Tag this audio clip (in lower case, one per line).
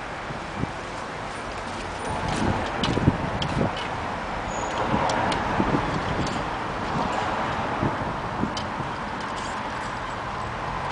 vehicle
car